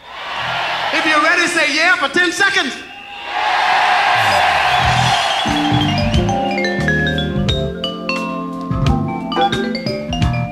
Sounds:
music
speech

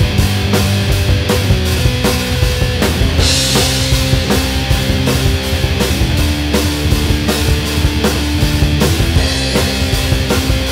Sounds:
strum
music
musical instrument
guitar
plucked string instrument
electric guitar

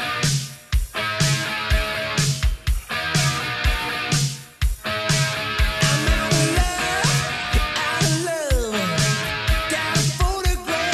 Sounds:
musical instrument
music
guitar
plucked string instrument
electric guitar

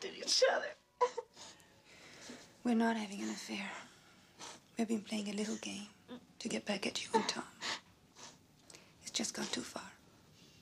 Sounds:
speech
inside a small room

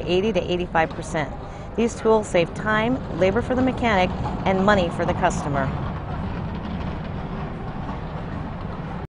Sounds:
speech

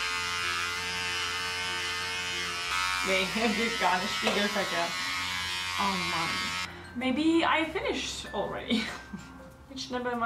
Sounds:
speech
electric razor
inside a small room
music

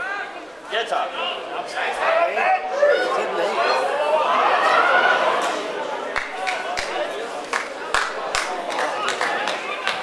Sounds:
speech

